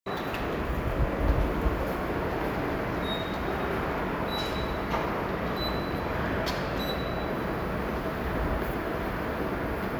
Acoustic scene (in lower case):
subway station